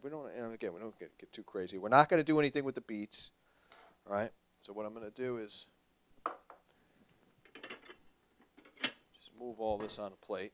A man speaks followed by some light clinks